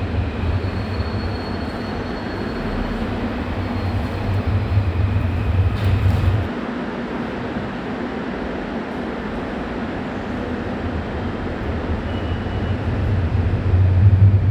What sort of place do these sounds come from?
subway station